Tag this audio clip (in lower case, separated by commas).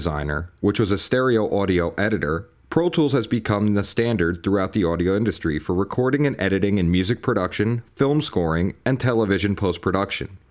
speech